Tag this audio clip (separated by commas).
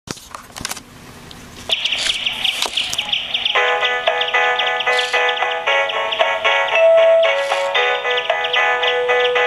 Bird, tweet